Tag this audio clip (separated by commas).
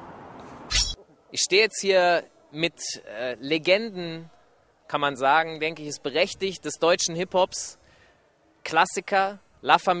Speech